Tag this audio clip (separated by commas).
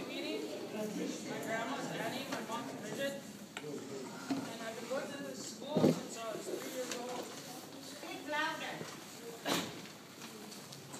Speech